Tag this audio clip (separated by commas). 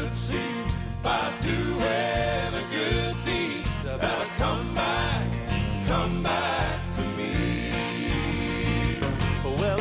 Music